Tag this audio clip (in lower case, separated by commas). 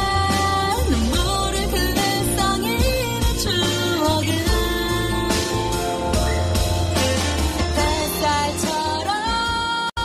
music